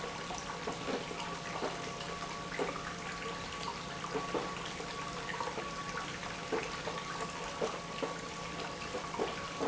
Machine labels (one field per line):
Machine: pump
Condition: abnormal